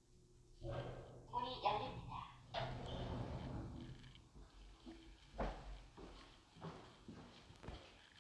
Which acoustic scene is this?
elevator